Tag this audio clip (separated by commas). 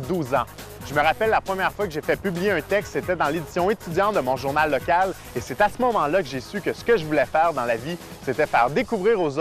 Music, Speech